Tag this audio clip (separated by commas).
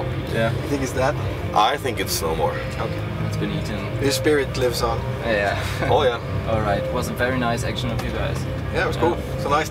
Speech, Bus, Vehicle, Music